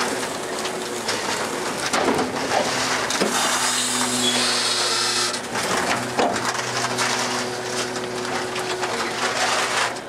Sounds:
truck

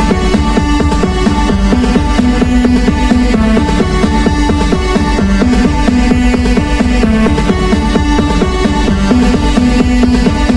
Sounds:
music

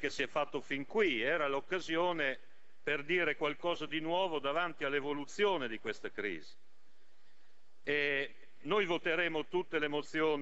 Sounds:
speech

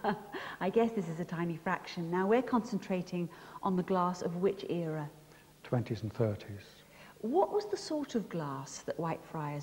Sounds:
speech, woman speaking

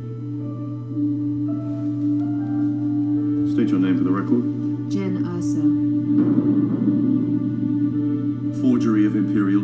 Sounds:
music, speech

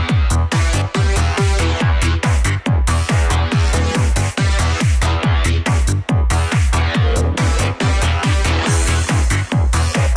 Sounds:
music, trance music

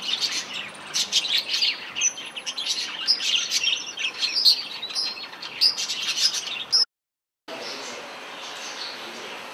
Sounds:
bird vocalization, bird, tweet

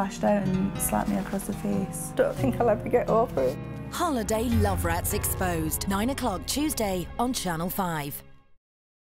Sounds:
music, speech

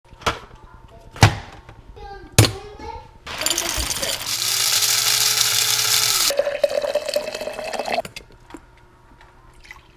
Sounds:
speech

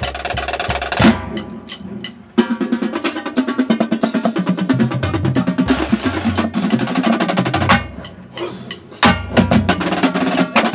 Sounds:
music, wood block

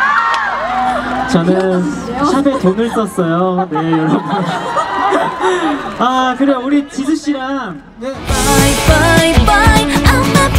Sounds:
speech, music

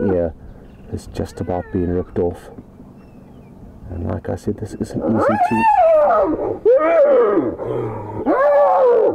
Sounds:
roaring cats, speech, animal, wild animals

